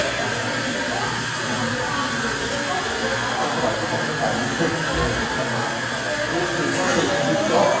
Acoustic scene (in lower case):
cafe